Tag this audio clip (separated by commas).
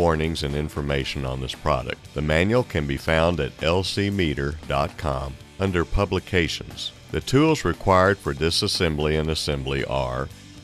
Speech, Music